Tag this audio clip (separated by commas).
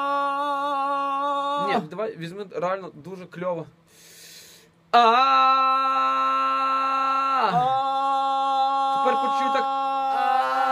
Male singing, Speech